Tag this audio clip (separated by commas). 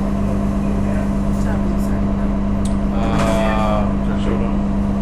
Vehicle, Bus, Motor vehicle (road)